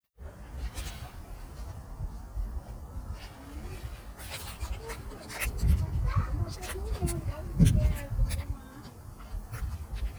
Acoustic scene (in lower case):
park